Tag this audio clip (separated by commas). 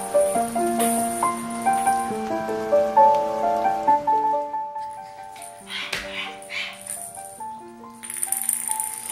Music, Speech